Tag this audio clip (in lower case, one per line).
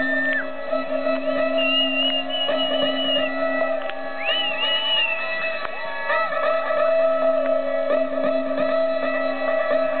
bleep
music